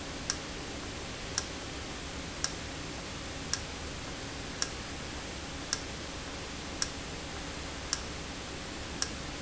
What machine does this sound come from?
valve